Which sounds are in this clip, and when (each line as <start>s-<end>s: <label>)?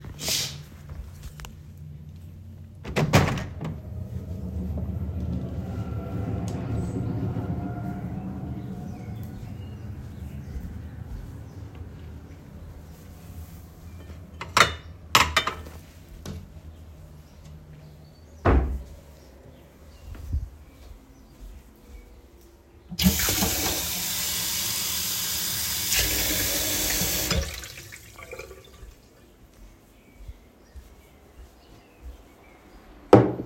2.7s-3.7s: window
14.1s-15.8s: cutlery and dishes
18.4s-18.9s: wardrobe or drawer
22.9s-28.9s: running water